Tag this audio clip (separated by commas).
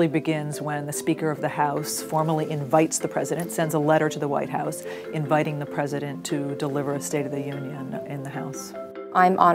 Speech, Music